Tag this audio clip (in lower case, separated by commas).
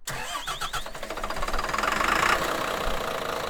vehicle, engine, engine starting, bus, motor vehicle (road)